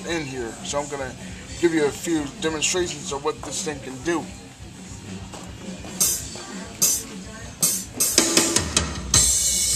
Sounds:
music
drum kit
musical instrument
speech
drum

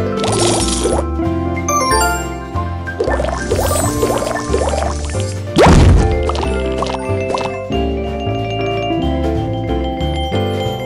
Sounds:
music

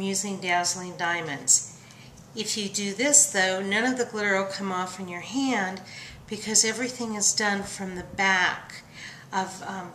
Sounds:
speech

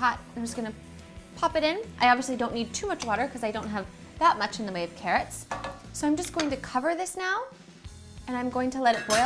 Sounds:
speech
woman speaking

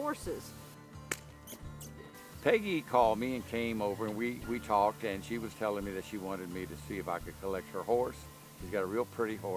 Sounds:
speech

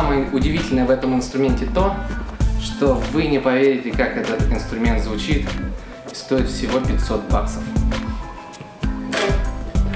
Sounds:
guitar
music
plucked string instrument
strum
musical instrument
speech

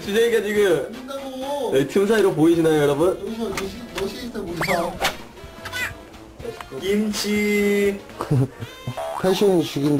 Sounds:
speech
music

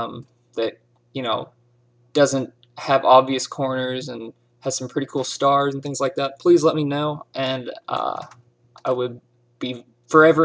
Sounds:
speech

